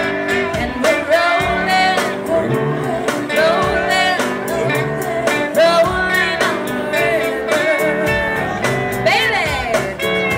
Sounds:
music

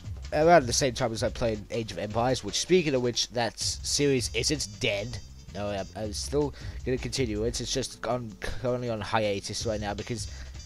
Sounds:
speech, music

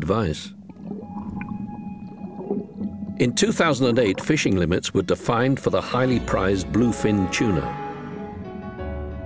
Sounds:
speech, music

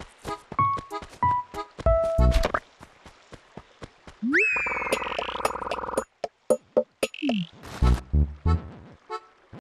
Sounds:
musical instrument, music

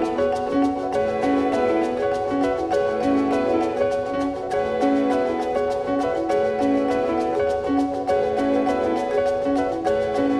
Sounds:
music

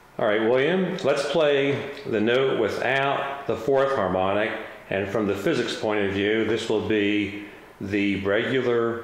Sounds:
speech

